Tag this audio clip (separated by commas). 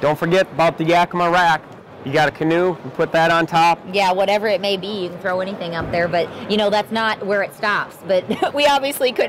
Speech